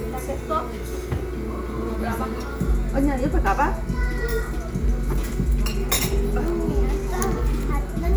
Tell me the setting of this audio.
restaurant